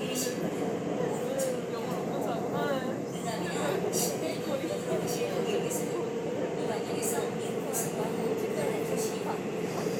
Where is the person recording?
on a subway train